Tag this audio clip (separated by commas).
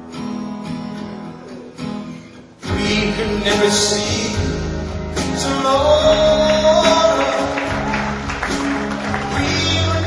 Music, Jazz